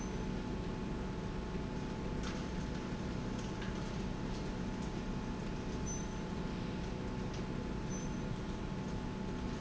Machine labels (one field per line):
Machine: slide rail